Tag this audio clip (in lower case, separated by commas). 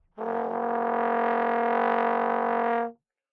music, brass instrument, musical instrument